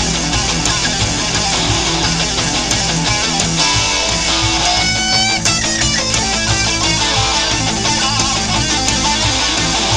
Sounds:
musical instrument
inside a small room
music
plucked string instrument
guitar

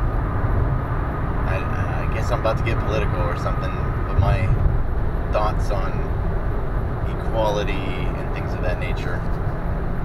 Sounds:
speech

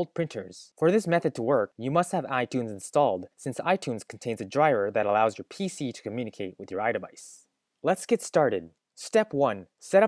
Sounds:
speech

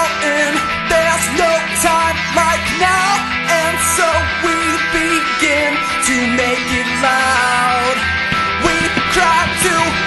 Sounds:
music

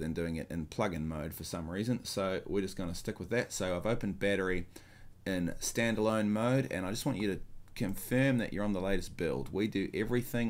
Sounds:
speech

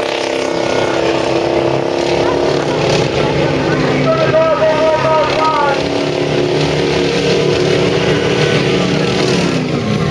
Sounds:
truck
speech
vehicle

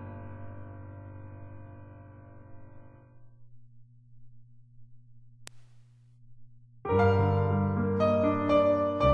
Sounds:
musical instrument
piano
electric piano
keyboard (musical)
music

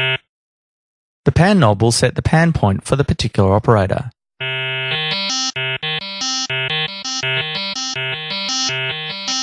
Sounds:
synthesizer
beep
music

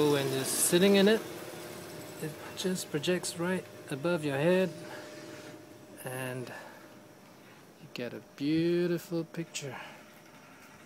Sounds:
vehicle
speech

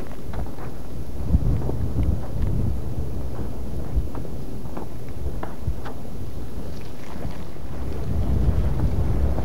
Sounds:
volcano explosion

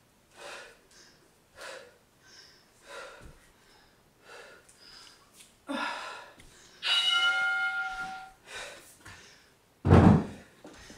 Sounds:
inside a small room

